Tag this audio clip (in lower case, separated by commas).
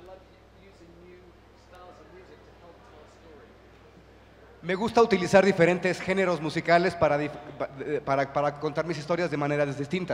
speech